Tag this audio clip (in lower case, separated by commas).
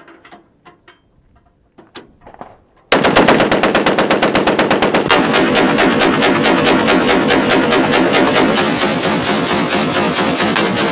machine gun shooting